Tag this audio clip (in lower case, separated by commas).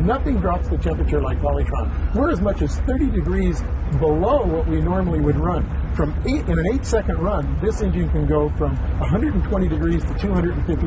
medium engine (mid frequency), engine, speech, vehicle, idling